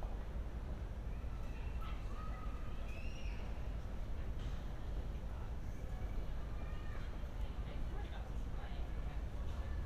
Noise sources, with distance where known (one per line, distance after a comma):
person or small group shouting